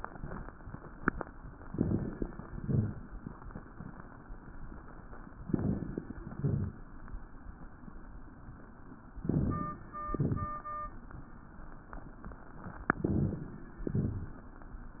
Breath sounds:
1.63-2.35 s: inhalation
1.63-2.35 s: crackles
2.41-3.13 s: exhalation
2.41-3.13 s: crackles
5.41-6.13 s: crackles
5.46-6.19 s: inhalation
6.19-6.91 s: exhalation
6.19-6.91 s: crackles
9.13-9.85 s: inhalation
9.13-9.85 s: crackles
10.04-10.61 s: exhalation
10.04-10.61 s: crackles
12.96-13.66 s: inhalation
12.96-13.66 s: crackles
13.87-14.46 s: exhalation
13.87-14.46 s: crackles

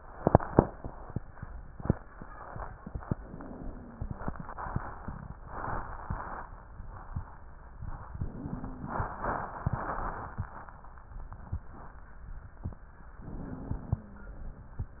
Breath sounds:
3.12-4.29 s: wheeze
8.14-9.31 s: wheeze
13.16-14.33 s: wheeze

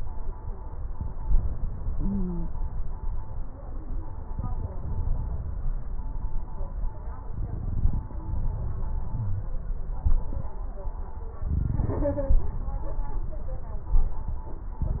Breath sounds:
1.93-2.47 s: stridor
9.13-9.49 s: wheeze

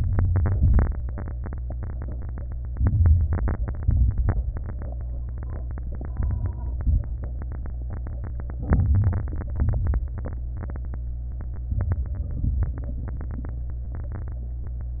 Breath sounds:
0.00-0.53 s: inhalation
0.00-0.53 s: crackles
0.55-0.96 s: exhalation
0.55-0.96 s: crackles
2.77-3.86 s: inhalation
2.79-3.81 s: crackles
3.85-4.87 s: exhalation
3.85-4.87 s: crackles
8.69-9.54 s: inhalation
8.69-9.54 s: crackles
9.61-10.46 s: exhalation
9.61-10.46 s: crackles
11.71-12.32 s: inhalation
11.71-12.32 s: crackles
12.34-12.90 s: exhalation
12.34-12.90 s: crackles

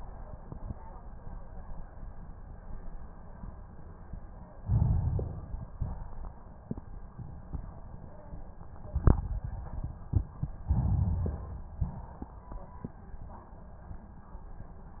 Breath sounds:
4.61-5.71 s: inhalation
5.71-6.36 s: exhalation
10.70-11.78 s: inhalation
11.78-12.33 s: exhalation

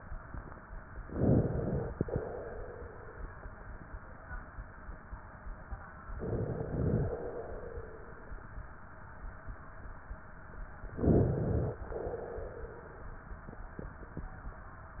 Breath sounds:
1.08-2.05 s: inhalation
2.05-3.36 s: exhalation
6.19-7.16 s: inhalation
7.13-8.45 s: exhalation
11.01-11.86 s: inhalation
11.92-13.23 s: exhalation

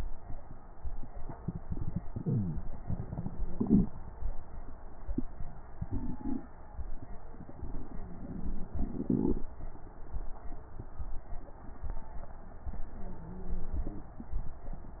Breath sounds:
12.85-14.10 s: inhalation
12.85-14.10 s: wheeze

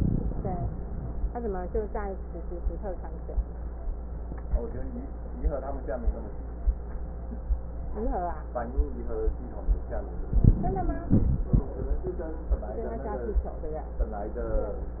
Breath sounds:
10.30-11.12 s: inhalation
11.14-11.69 s: exhalation

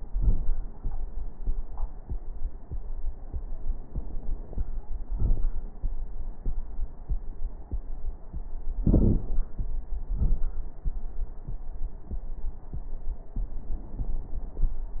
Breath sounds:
8.80-9.30 s: inhalation
8.80-9.30 s: crackles
10.10-10.54 s: exhalation

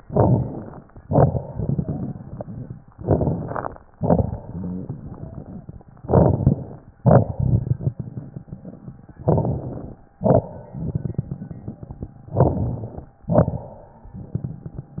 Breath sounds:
0.00-0.84 s: inhalation
0.00-0.84 s: crackles
0.96-2.85 s: exhalation
1.65-2.33 s: wheeze
2.94-3.79 s: inhalation
2.96-3.79 s: crackles
3.98-5.93 s: exhalation
3.99-5.83 s: crackles
6.01-6.85 s: crackles
6.03-6.89 s: inhalation
7.01-8.85 s: crackles
7.05-9.12 s: exhalation
9.22-10.06 s: crackles
9.26-10.11 s: inhalation
10.24-12.30 s: exhalation
10.27-12.11 s: crackles
12.33-13.19 s: inhalation
12.35-13.19 s: crackles
13.33-15.00 s: exhalation
13.37-15.00 s: crackles

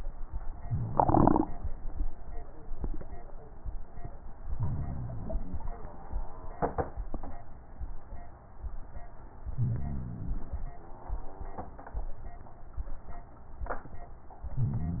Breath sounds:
4.33-5.72 s: inhalation
9.48-10.87 s: inhalation
14.48-15.00 s: inhalation

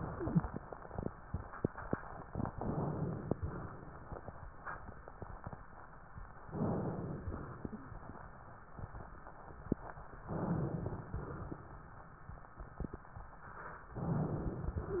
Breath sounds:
2.54-3.34 s: inhalation
3.42-4.21 s: exhalation
6.49-7.29 s: inhalation
7.30-8.10 s: exhalation
10.34-11.14 s: inhalation
11.14-11.73 s: exhalation
13.98-14.76 s: inhalation

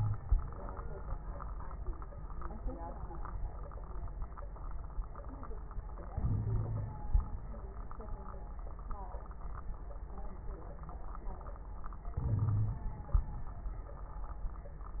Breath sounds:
6.08-7.44 s: inhalation
6.24-6.96 s: wheeze
12.16-12.84 s: wheeze
12.16-13.50 s: inhalation

